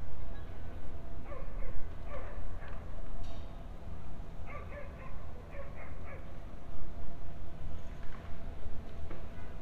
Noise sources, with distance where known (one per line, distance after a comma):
dog barking or whining, far